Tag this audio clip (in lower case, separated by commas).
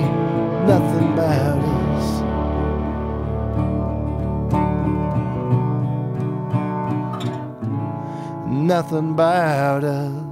acoustic guitar, music